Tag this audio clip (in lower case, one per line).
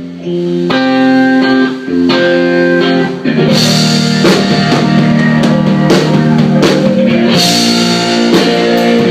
music